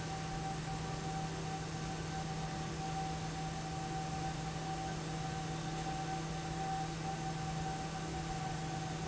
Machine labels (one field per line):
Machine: fan